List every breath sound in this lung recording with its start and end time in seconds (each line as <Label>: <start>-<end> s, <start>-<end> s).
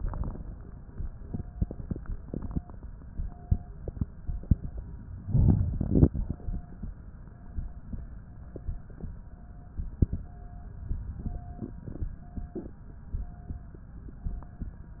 Inhalation: 5.29-6.09 s
Crackles: 5.29-6.09 s